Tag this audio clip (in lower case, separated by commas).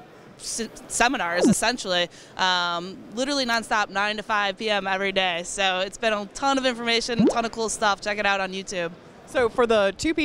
speech